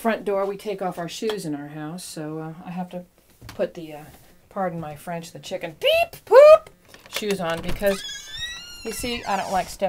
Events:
[0.00, 2.98] woman speaking
[0.00, 9.85] background noise
[0.40, 0.51] surface contact
[0.86, 1.01] surface contact
[1.28, 1.36] tick
[3.12, 3.28] generic impact sounds
[3.16, 3.43] surface contact
[3.45, 3.53] generic impact sounds
[3.50, 4.04] woman speaking
[3.68, 4.26] surface contact
[4.10, 4.26] generic impact sounds
[4.49, 5.71] woman speaking
[4.78, 4.89] generic impact sounds
[5.79, 6.63] woman speaking
[6.61, 6.68] generic impact sounds
[6.82, 7.77] generic impact sounds
[7.15, 7.95] woman speaking
[7.80, 9.73] creak
[8.52, 8.58] generic impact sounds
[8.83, 9.85] woman speaking
[8.84, 8.93] generic impact sounds

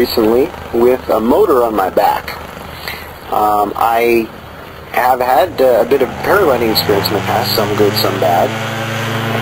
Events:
[0.00, 0.52] male speech
[0.00, 9.41] motor vehicle (road)
[0.70, 2.35] male speech
[2.75, 3.10] breathing
[3.25, 4.27] male speech
[4.90, 8.52] male speech
[5.94, 9.41] revving

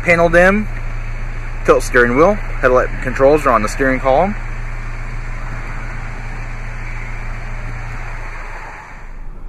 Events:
[0.00, 0.58] male speech
[0.00, 9.45] medium engine (mid frequency)
[1.63, 4.32] male speech

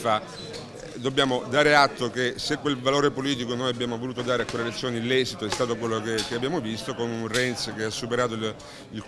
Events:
[0.00, 0.19] male speech
[0.01, 9.05] speech babble
[0.85, 8.56] male speech

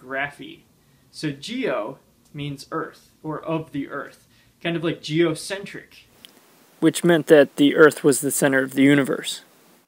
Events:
[0.00, 0.63] man speaking
[0.01, 9.85] background noise
[0.96, 1.97] man speaking
[2.20, 2.99] man speaking
[3.17, 4.06] man speaking
[4.49, 5.86] man speaking
[6.81, 9.42] man speaking

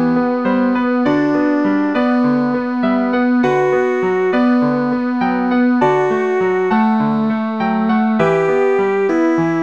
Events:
[0.00, 9.62] music

